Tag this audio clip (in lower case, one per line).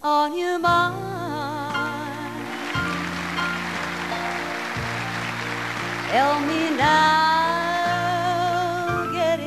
female singing
music